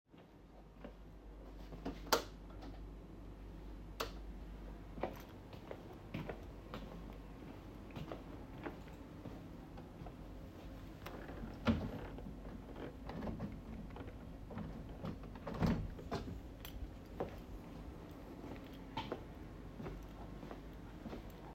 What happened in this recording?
I walked into a room and turned on the light. Then I opened a drawer.